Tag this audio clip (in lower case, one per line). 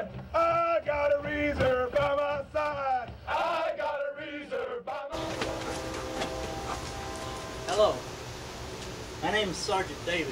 speech